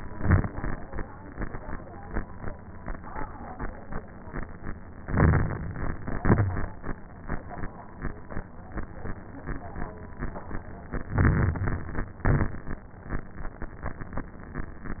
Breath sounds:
Inhalation: 5.07-5.95 s, 11.10-12.12 s
Exhalation: 0.00-0.49 s, 6.10-6.71 s, 12.24-12.86 s
Crackles: 0.00-0.49 s, 5.07-5.95 s, 6.10-6.71 s, 11.10-12.12 s, 12.24-12.86 s

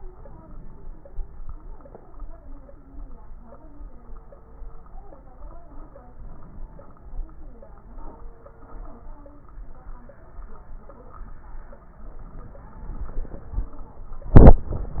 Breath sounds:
Inhalation: 0.00-1.09 s, 6.12-7.23 s

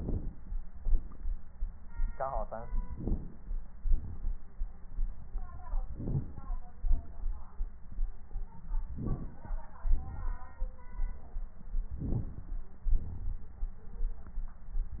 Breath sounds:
Inhalation: 2.87-3.63 s, 5.86-6.51 s, 8.90-9.54 s, 11.97-12.62 s
Exhalation: 3.81-4.46 s, 6.91-7.55 s, 9.89-10.53 s, 12.96-13.60 s

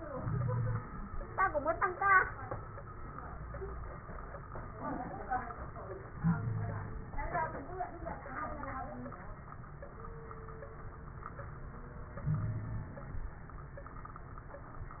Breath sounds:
Inhalation: 0.00-1.05 s, 6.17-7.11 s, 12.24-13.14 s
Wheeze: 0.14-0.83 s, 6.19-6.99 s, 12.24-12.95 s

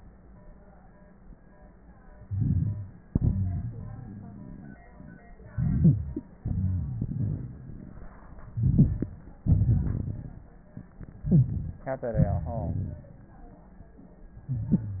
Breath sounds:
Inhalation: 2.17-3.05 s, 5.49-6.38 s, 8.45-9.42 s, 11.21-11.86 s, 14.43-15.00 s
Exhalation: 3.05-4.75 s, 6.38-8.45 s, 9.41-10.95 s, 11.85-13.28 s
Wheeze: 3.05-4.75 s, 6.38-7.63 s, 11.21-11.86 s, 14.51-15.00 s
Crackles: 2.17-3.05 s, 5.49-6.38 s, 8.42-9.39 s, 9.41-10.95 s, 11.85-13.28 s

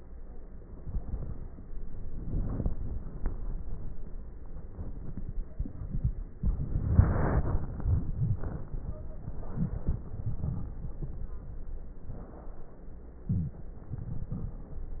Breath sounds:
Inhalation: 1.77-3.27 s, 6.33-7.83 s, 9.23-10.07 s, 13.19-13.82 s
Exhalation: 10.07-11.03 s, 13.80-14.67 s
Wheeze: 13.31-13.65 s
Stridor: 8.79-9.28 s
Crackles: 1.77-3.27 s, 9.23-10.07 s, 10.08-11.03 s, 13.80-14.67 s

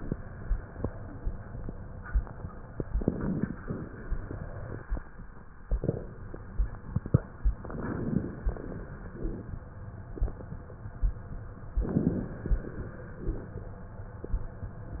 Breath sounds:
Inhalation: 2.90-3.59 s, 7.59-8.50 s, 11.83-12.52 s
Exhalation: 3.66-4.82 s, 8.54-9.45 s, 12.52-13.56 s
Rhonchi: 9.12-9.45 s
Crackles: 2.90-3.59 s, 7.59-8.50 s

